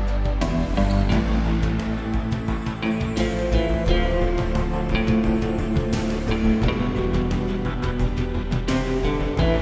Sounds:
Music

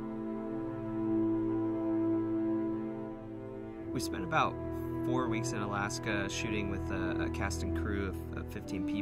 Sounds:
Speech, Music

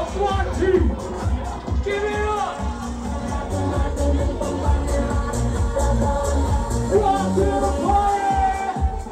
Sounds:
Speech, Music, Crowd

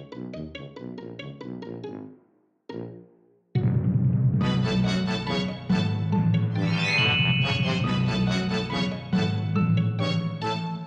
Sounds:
Music

